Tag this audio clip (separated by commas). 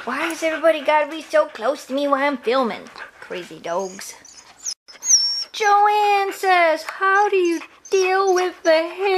inside a large room or hall, Animal, Speech, Dog, pets